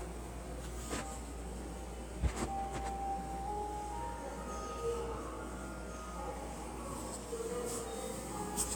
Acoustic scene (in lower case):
subway station